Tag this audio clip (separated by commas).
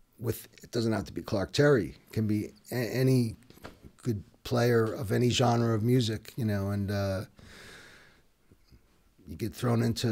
Speech